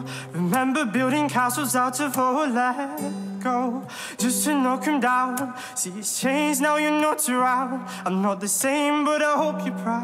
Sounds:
music

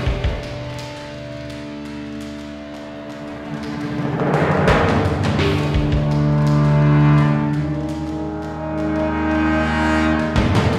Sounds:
music
timpani

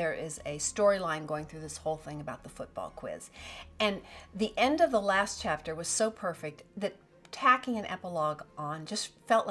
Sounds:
speech
music

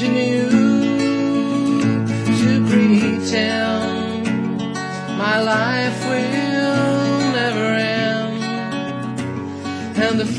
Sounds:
musical instrument
guitar
plucked string instrument
music
acoustic guitar
strum

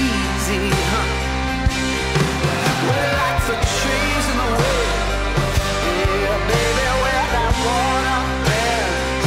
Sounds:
music

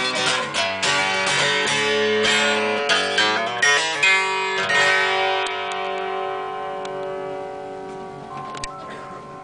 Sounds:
music
strum
musical instrument
guitar
plucked string instrument

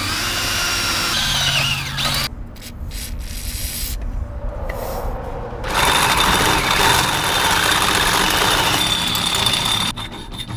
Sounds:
drill

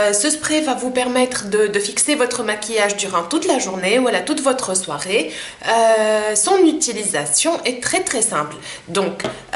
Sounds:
speech

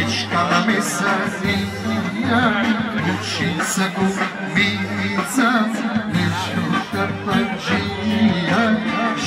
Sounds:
music
speech

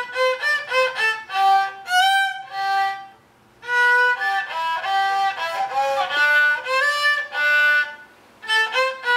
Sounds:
musical instrument
music
playing violin
violin

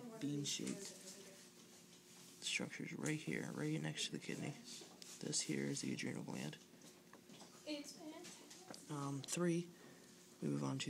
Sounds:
speech

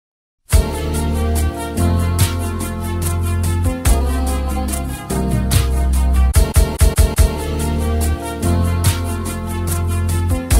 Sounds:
music
rhythm and blues

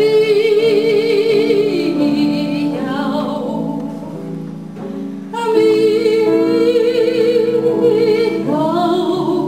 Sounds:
music

